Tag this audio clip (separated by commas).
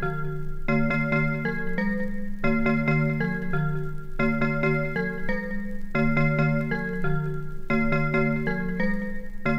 Music, Glockenspiel